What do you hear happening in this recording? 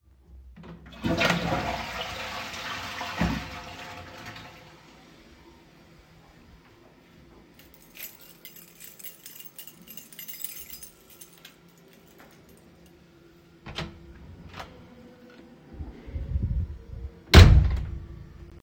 I flushed the toilet. Then I picked up my keys, opened the door and went out of the apartment